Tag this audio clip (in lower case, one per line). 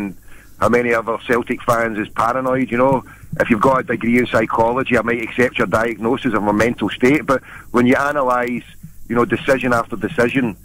speech
radio